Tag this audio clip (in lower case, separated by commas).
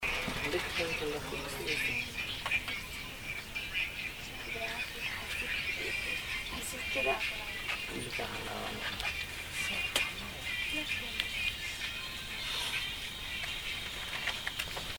motor vehicle (road), vehicle, bus